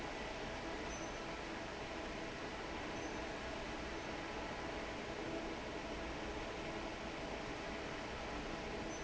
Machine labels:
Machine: fan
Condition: normal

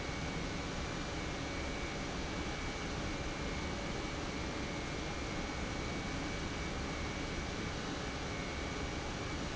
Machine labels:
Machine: pump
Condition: normal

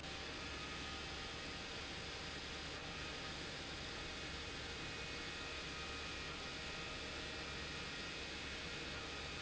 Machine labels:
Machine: pump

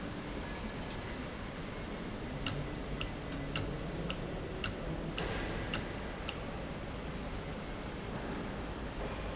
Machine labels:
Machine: valve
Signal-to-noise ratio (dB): -6 dB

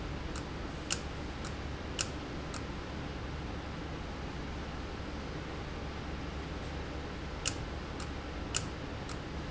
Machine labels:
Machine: valve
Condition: abnormal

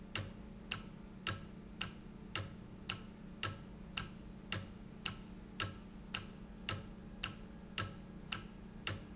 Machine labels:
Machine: valve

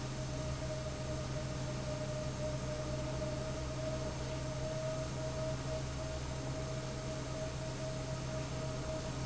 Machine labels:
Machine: fan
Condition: abnormal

